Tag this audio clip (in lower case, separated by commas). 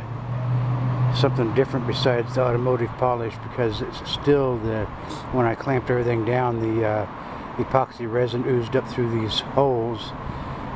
speech, roadway noise